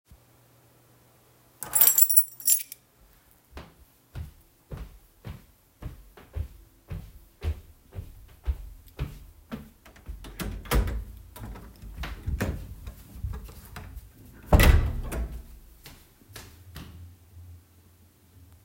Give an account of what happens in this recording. I picked up my keys from the table, walked to the entrance and opened door to leave.